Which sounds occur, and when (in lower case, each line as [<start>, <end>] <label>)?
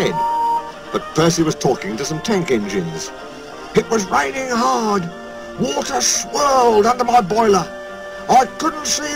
[0.00, 9.15] music
[0.10, 0.66] train whistle
[8.57, 9.15] man speaking